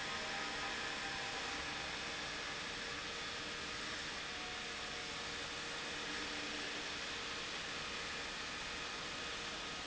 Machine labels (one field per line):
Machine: pump